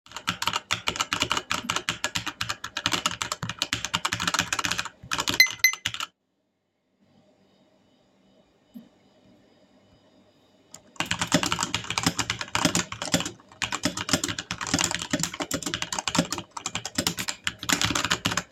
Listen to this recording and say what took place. I was typing on a keyboard, then I received a notification on my phone, I then stopped typing and looked at the notification, after I have read the notification, I have started to type on the keyboard again.